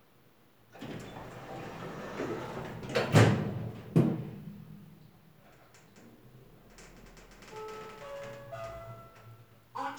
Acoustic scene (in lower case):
elevator